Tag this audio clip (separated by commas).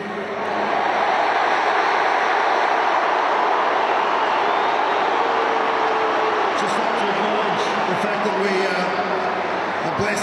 people booing